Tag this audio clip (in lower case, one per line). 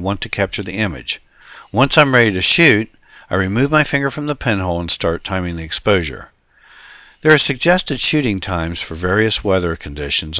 speech